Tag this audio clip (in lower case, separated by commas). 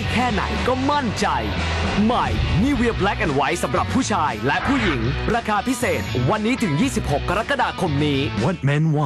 speech, music